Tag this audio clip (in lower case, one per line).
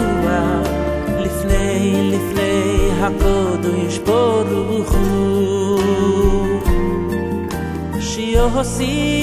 christmas music